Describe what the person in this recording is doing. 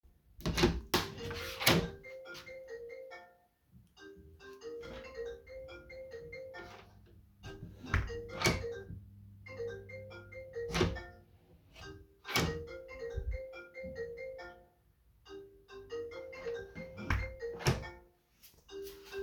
I opened and closed the door while the phone is ringing in the background.